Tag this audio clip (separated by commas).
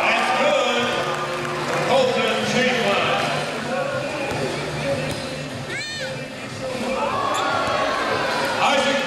Speech